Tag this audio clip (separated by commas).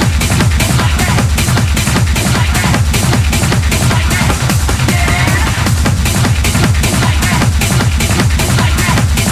Music, Techno, Electronic music